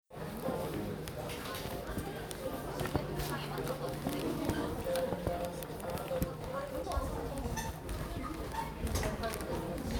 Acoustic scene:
crowded indoor space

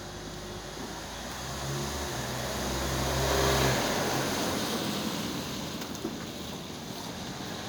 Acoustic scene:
residential area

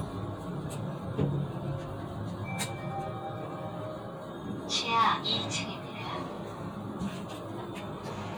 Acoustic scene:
elevator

